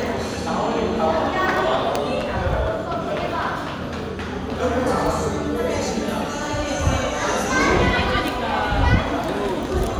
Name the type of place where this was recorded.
crowded indoor space